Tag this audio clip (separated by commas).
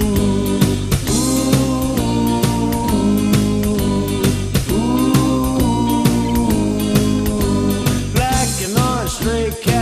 Musical instrument, Strum, Music, Plucked string instrument, Guitar